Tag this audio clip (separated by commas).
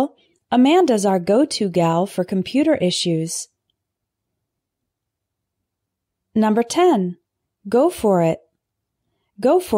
monologue